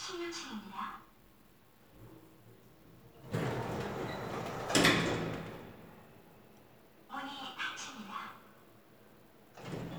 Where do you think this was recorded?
in an elevator